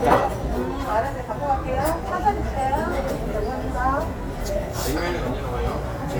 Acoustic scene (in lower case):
restaurant